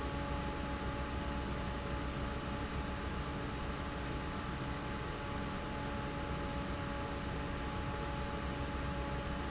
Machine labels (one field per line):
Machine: fan